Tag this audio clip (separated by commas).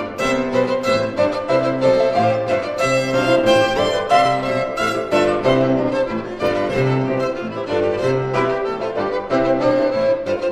Music, Musical instrument, fiddle